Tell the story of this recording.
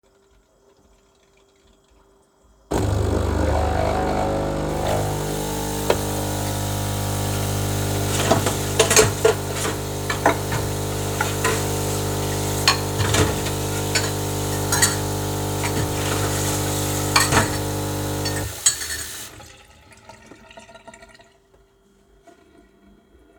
I started the coffee machine while running water in the sink and moving cutlery and dishes at the same time.